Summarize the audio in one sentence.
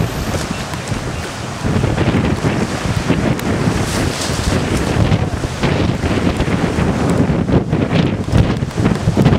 Water flows as a strong wind blows